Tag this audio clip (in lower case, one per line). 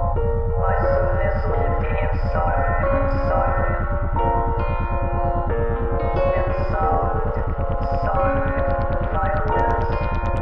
music